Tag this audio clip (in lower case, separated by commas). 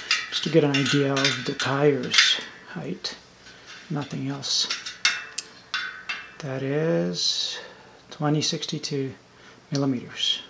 inside a small room, speech